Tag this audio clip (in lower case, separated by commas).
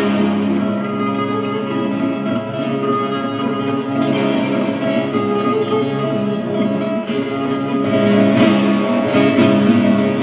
plucked string instrument, acoustic guitar, musical instrument, music, guitar